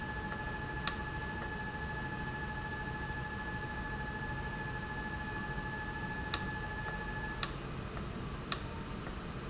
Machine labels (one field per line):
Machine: valve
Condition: abnormal